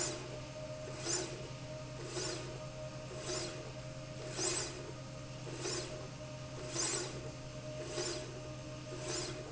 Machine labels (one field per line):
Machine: slide rail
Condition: normal